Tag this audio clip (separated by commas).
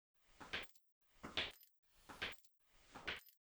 Walk